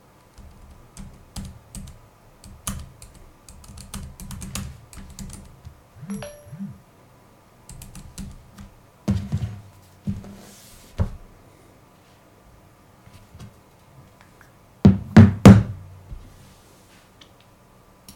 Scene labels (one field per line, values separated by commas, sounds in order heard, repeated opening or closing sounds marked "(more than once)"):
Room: office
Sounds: keyboard typing, phone ringing